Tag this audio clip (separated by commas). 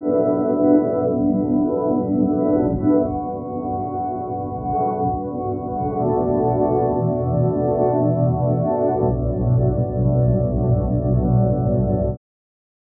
Music, Organ, Musical instrument, Keyboard (musical)